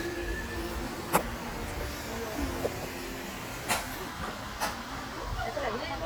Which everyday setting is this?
park